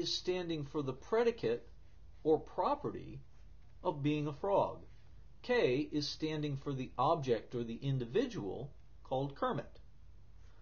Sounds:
monologue, Speech

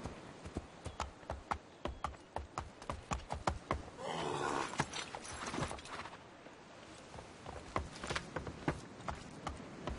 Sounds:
Animal, Clip-clop, horse clip-clop

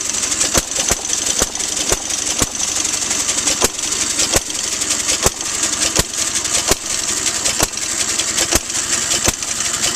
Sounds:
Engine

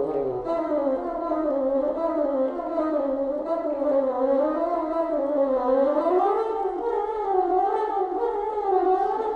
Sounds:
playing bassoon

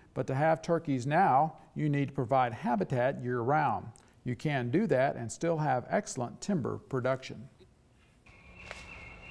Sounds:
Speech

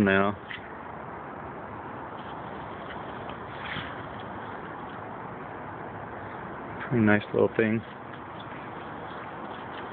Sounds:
Speech

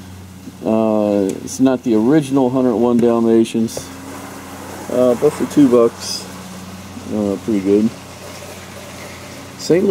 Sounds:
Speech, inside a small room

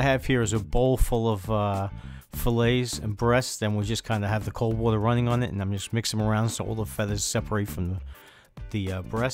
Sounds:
Speech

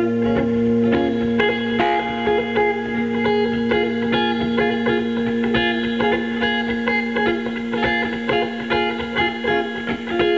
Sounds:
Music, Guitar

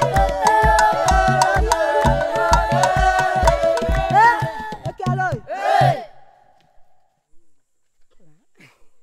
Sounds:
yodelling

